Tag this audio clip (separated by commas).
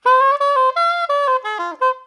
Musical instrument, Wind instrument, Music